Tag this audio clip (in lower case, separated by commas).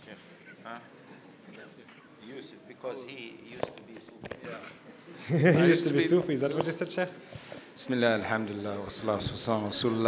speech